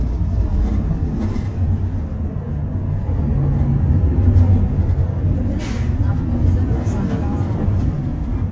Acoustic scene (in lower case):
bus